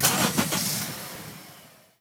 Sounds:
motor vehicle (road), car, engine starting, engine, vehicle

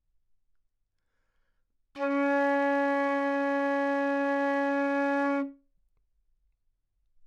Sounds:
music, musical instrument, woodwind instrument

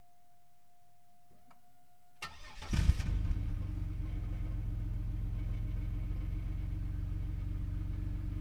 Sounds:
vehicle, engine, motor vehicle (road), engine starting, car

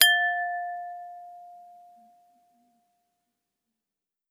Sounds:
glass

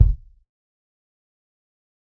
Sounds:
bass drum, percussion, music, musical instrument, drum

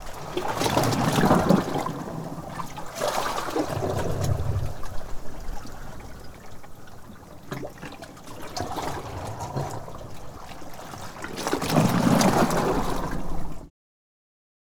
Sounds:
ocean, waves, water

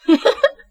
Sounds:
human voice, giggle, laughter

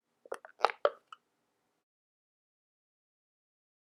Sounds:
crushing

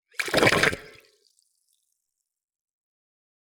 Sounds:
gurgling, water

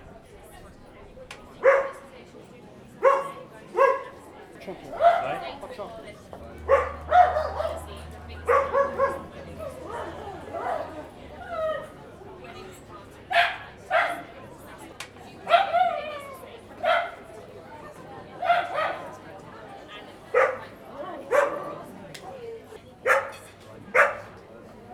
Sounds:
animal, pets, dog

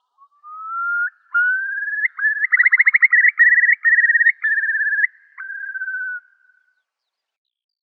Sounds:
bird, wild animals, animal

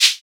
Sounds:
music, rattle (instrument), musical instrument, percussion

